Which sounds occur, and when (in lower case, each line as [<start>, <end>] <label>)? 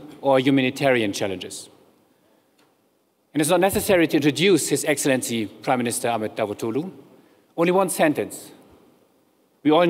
[0.00, 0.18] generic impact sounds
[0.00, 9.85] mechanisms
[0.19, 9.85] narration
[0.20, 1.73] male speech
[2.21, 2.41] generic impact sounds
[2.53, 2.65] tick
[3.27, 5.49] male speech
[5.62, 6.84] male speech
[7.17, 7.53] breathing
[7.53, 8.54] male speech
[9.62, 9.85] male speech